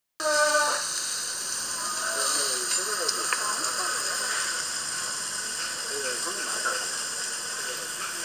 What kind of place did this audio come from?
restaurant